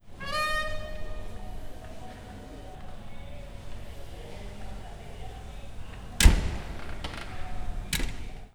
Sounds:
Door, Slam, home sounds

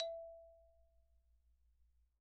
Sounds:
Percussion, Mallet percussion, Marimba, Musical instrument, Music

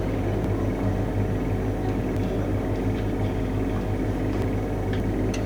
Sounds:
Mechanisms

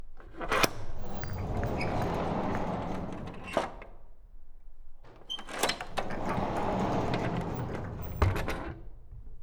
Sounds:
Door, Sliding door, home sounds

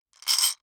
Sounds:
Glass

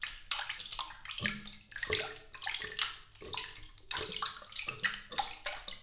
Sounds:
Domestic sounds, Water, Bathtub (filling or washing)

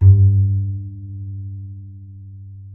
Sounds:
Bowed string instrument, Musical instrument, Music

